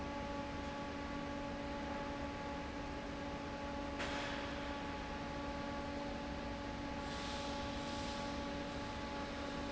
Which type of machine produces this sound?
fan